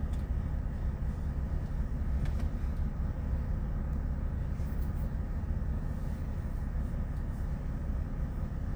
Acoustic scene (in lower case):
car